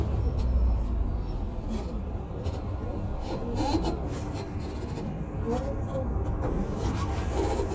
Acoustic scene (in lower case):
bus